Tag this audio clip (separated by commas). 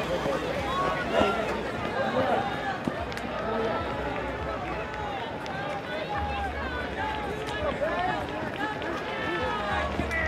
Speech, Run